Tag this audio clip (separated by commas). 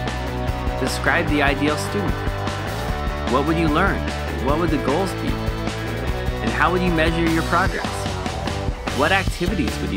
Speech, Music